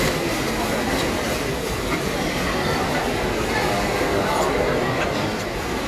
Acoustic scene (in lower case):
crowded indoor space